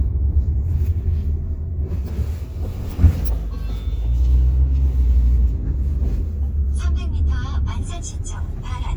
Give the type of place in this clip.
car